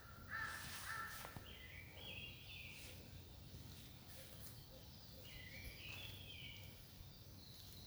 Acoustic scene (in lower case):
park